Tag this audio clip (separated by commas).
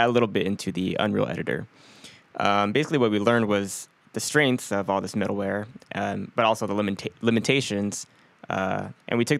Speech